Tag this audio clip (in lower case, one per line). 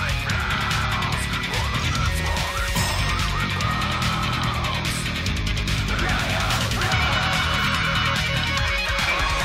musical instrument
guitar
music
electric guitar